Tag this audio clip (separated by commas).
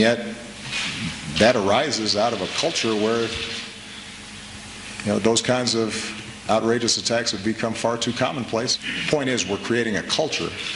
Speech